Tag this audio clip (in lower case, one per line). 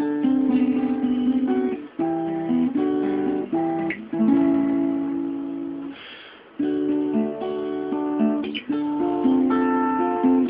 music
guitar
musical instrument
strum
plucked string instrument